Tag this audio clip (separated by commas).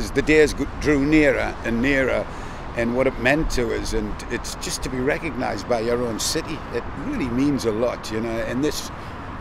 Speech